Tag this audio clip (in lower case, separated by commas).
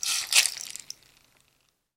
percussion, music, rattle (instrument), musical instrument